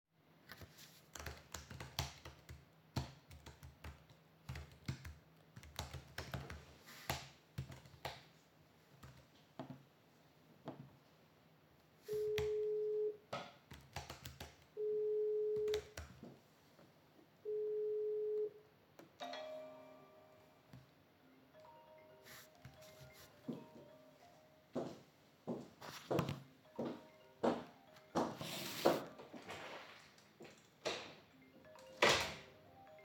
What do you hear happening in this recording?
I was typing a message and decided to call a coworker. The friend, that was working near me received a call and went out in the hallway, connected to the common room.